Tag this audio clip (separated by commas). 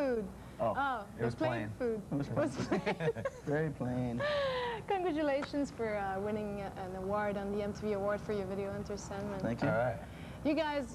Speech